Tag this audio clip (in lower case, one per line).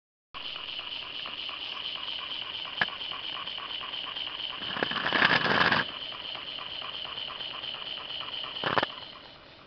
outside, rural or natural